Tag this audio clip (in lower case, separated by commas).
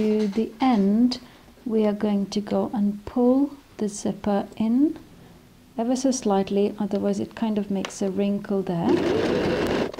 speech